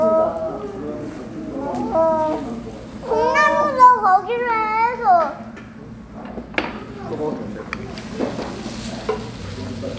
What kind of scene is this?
restaurant